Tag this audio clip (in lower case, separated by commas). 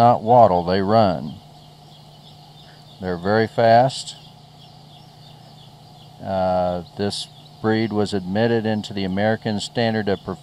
speech, duck